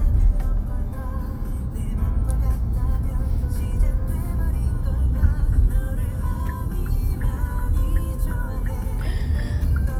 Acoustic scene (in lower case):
car